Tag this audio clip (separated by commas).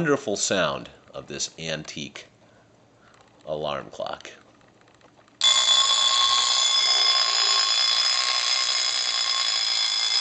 Alarm clock, Speech, Clock, Alarm